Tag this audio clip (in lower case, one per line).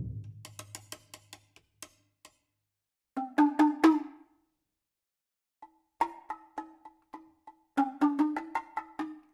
wood block
music